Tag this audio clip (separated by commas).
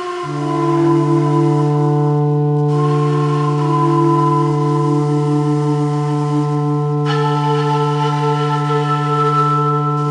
Music, Flute